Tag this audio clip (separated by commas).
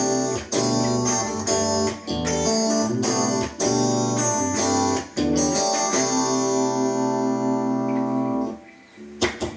Plucked string instrument, Music, Musical instrument, Guitar, Strum, Acoustic guitar